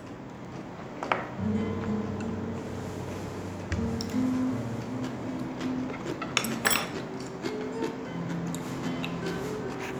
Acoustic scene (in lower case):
restaurant